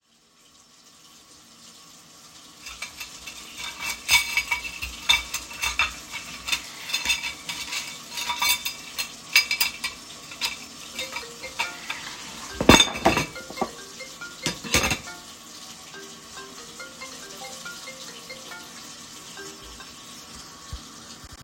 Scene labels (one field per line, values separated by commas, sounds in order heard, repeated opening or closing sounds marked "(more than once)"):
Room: kitchen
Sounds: running water, cutlery and dishes, phone ringing